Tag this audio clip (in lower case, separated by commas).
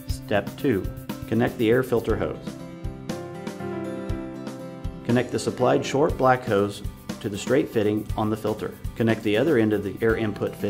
music, speech